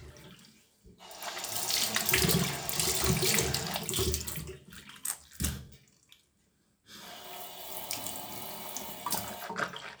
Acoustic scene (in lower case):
restroom